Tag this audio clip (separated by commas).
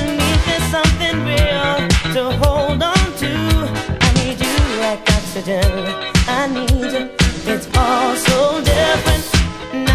Disco